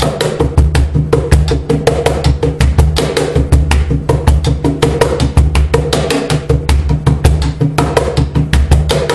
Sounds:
Musical instrument, Music, Wood block, Percussion, Drum

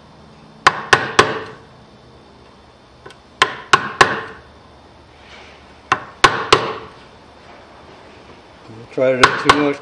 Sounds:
Wood

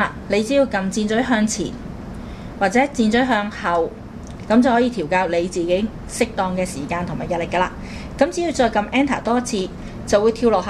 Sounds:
Speech

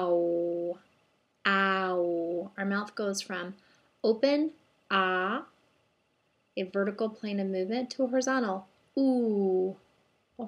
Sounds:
Speech, woman speaking, monologue

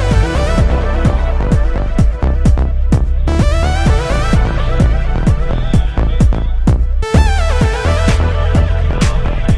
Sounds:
Music, Speech

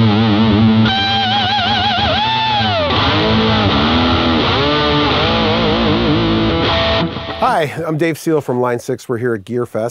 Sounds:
Speech, Music

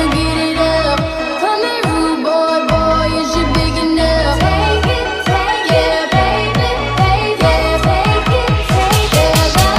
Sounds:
Music, Sampler

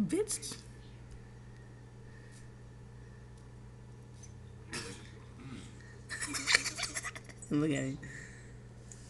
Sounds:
Speech

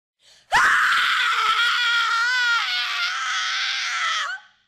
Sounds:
Screaming

